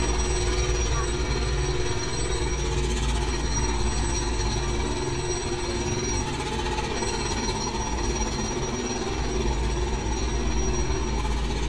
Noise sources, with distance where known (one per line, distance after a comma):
jackhammer, near